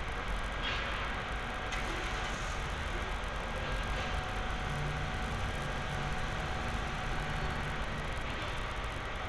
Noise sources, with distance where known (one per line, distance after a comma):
engine of unclear size, near